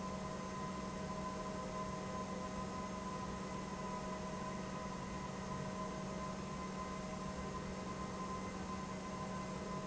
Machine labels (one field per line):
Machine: pump